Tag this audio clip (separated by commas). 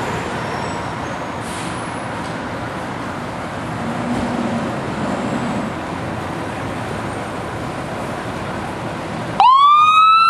Vehicle, Engine, Medium engine (mid frequency), Car